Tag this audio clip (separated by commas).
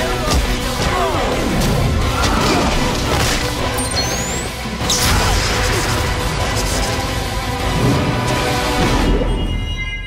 Music